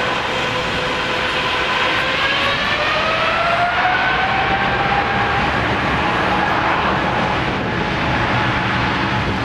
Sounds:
aircraft, engine, vehicle

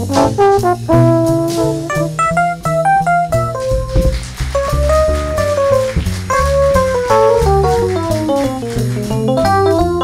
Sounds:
musical instrument, music, trombone, jazz

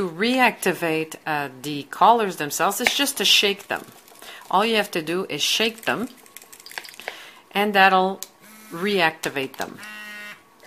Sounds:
speech

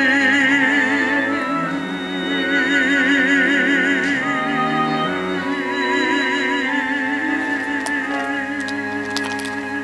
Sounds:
musical instrument, cello, classical music, music, bowed string instrument

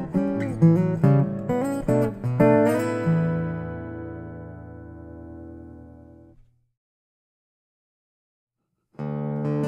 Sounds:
musical instrument, acoustic guitar, guitar, plucked string instrument

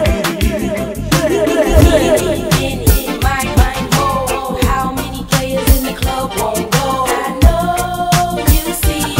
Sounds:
soul music

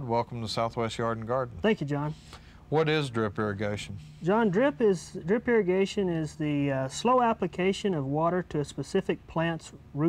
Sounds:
speech

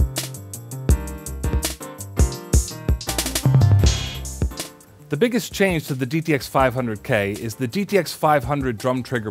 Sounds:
bass drum, drum kit, percussion, drum, drum roll, rimshot, snare drum

